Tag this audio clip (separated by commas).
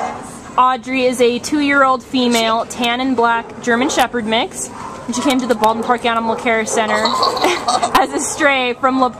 Speech, Animal, pets, Dog